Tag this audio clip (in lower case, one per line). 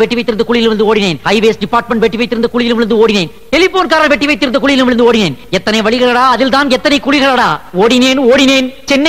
narration
speech
man speaking